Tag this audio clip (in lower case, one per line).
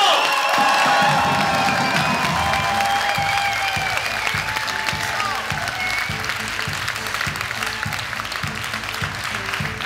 music